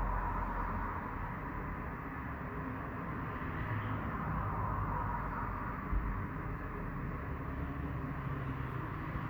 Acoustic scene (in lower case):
street